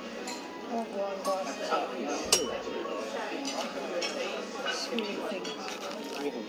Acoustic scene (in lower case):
restaurant